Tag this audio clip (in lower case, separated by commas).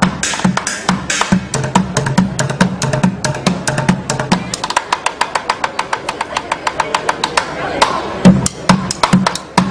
speech, music